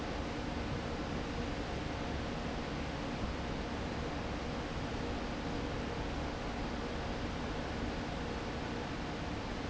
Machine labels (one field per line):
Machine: fan